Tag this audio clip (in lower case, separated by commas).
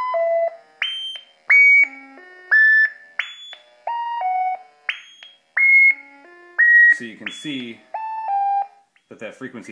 pulse, speech